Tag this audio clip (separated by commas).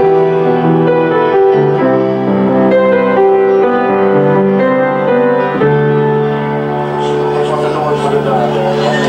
Music, Speech